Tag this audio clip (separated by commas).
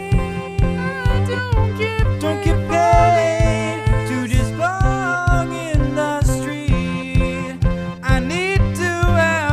outside, urban or man-made, Music